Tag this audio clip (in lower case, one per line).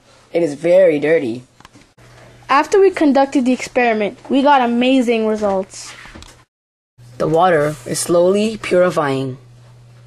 speech